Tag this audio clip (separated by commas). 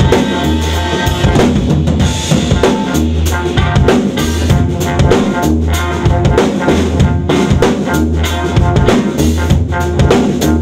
Rimshot, Bass drum, Drum, Drum kit, Percussion, Snare drum